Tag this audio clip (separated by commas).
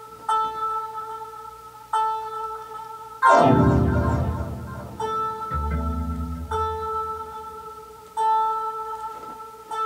Musical instrument, Music, Theremin